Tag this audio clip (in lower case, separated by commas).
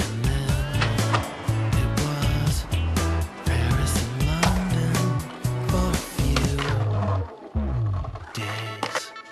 skateboard